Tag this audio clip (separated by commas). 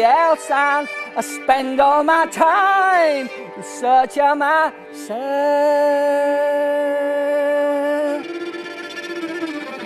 Music, outside, rural or natural